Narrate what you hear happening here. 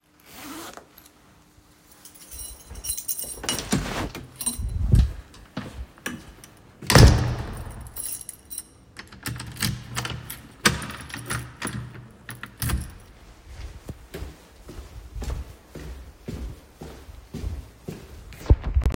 I zipped my jacket, opened the door, took my keys, closed the door, walked away